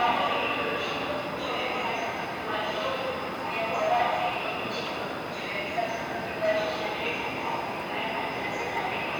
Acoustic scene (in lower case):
subway station